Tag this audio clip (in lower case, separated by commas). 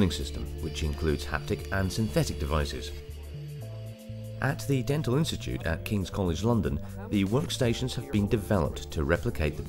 speech, music